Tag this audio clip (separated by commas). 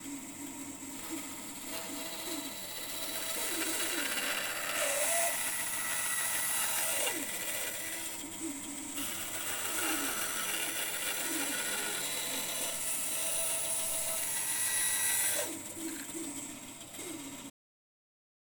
Tools, Sawing